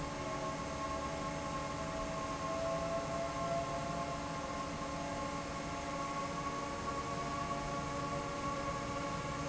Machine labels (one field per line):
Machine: fan